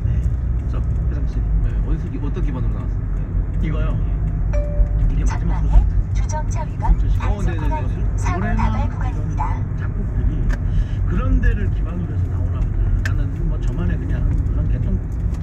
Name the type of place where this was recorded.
car